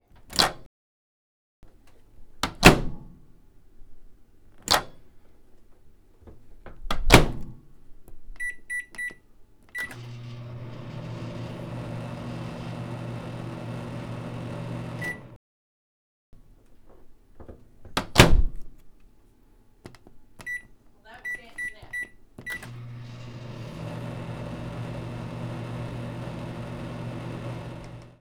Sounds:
microwave oven, home sounds

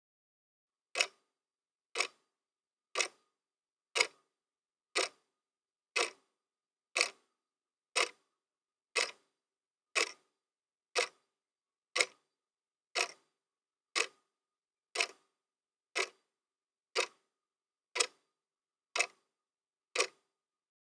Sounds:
clock, mechanisms, tick-tock

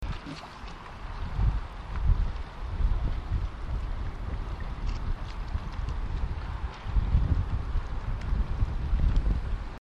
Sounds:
wind

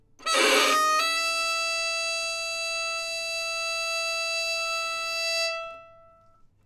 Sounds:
musical instrument, music, bowed string instrument

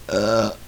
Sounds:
eructation

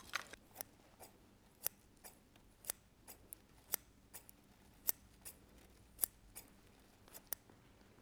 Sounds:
domestic sounds, scissors

